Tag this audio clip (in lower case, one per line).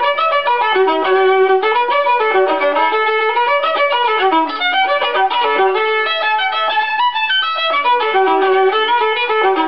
music
fiddle
musical instrument